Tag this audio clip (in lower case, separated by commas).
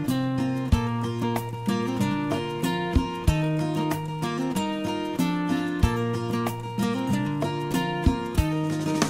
music